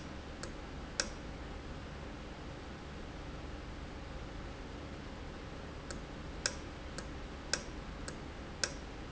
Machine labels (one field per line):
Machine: valve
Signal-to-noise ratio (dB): 0 dB